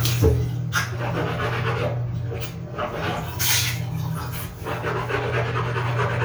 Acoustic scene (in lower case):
restroom